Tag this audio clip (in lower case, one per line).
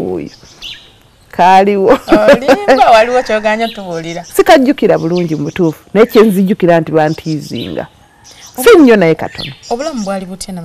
speech
outside, rural or natural